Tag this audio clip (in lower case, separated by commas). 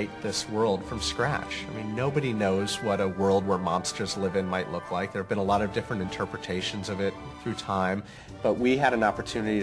speech, music